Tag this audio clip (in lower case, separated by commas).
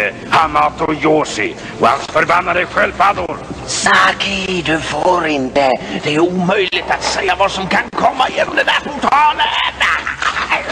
speech